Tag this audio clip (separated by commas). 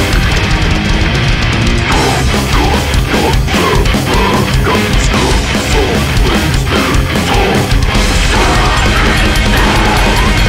Music, Rhythm and blues